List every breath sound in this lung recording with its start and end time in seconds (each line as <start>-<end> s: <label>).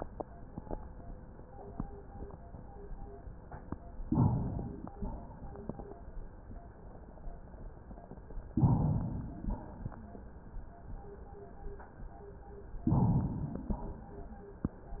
4.04-4.92 s: inhalation
4.97-5.69 s: exhalation
8.54-9.41 s: inhalation
9.43-10.06 s: exhalation
12.85-13.72 s: inhalation
13.72-14.34 s: exhalation